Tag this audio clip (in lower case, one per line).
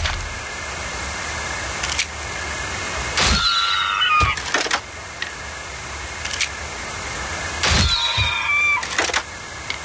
outside, rural or natural